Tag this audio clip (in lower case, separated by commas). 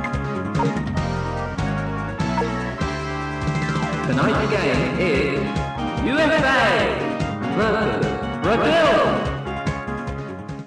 speech, music